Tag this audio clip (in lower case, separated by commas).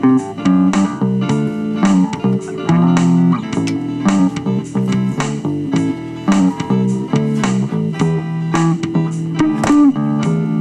music, electric guitar, musical instrument, guitar